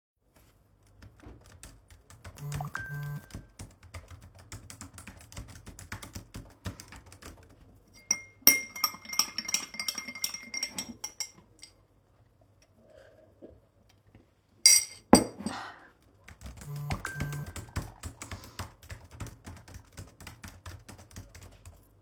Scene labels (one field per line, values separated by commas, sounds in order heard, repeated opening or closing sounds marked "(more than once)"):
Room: office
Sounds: keyboard typing, phone ringing, cutlery and dishes